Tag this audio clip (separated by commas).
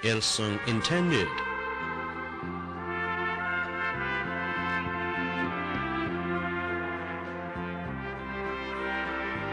Classical music, Speech, Music